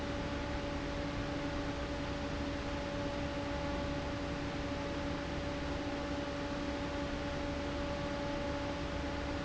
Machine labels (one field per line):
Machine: fan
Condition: abnormal